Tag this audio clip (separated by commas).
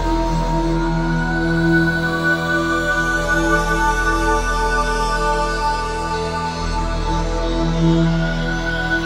Music